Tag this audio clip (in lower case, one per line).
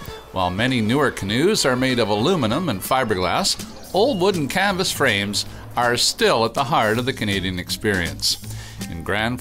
music
speech